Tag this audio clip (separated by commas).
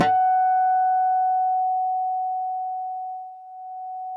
Guitar, Acoustic guitar, Music, Musical instrument, Plucked string instrument